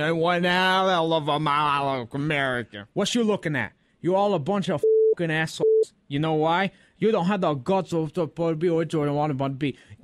A man delivers a monologue